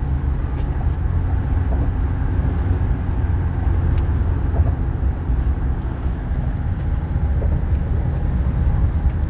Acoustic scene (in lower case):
car